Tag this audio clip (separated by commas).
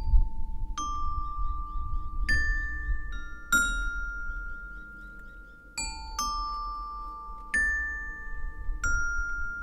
xylophone, Glockenspiel, Mallet percussion